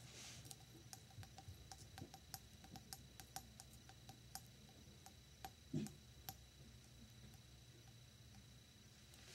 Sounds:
glass

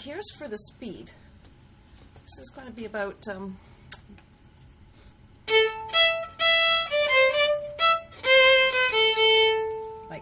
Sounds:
violin
music
speech
musical instrument

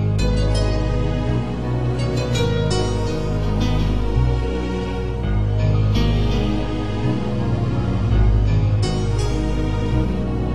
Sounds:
music

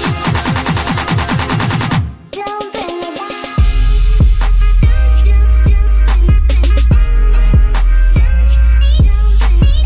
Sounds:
dubstep
music

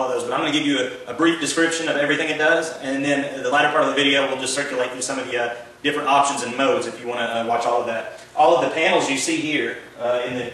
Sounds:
speech

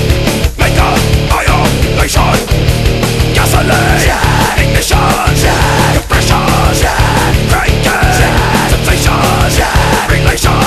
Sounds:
music

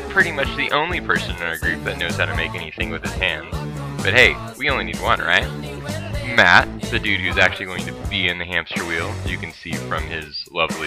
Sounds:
music
speech

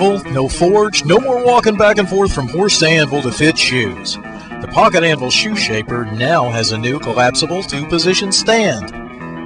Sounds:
music
speech

